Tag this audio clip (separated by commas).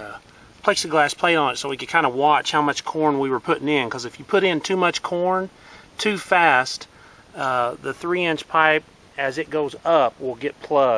Speech